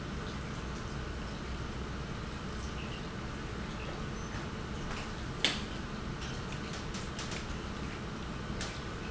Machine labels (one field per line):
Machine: pump